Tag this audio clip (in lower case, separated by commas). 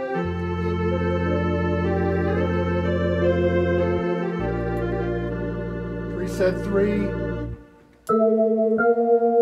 music, speech